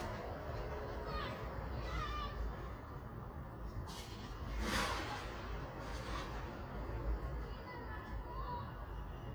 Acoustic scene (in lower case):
residential area